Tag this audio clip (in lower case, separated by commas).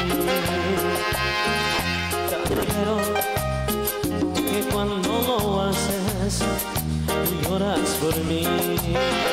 echo, music